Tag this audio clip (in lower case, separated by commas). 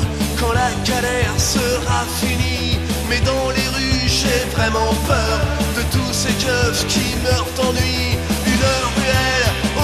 music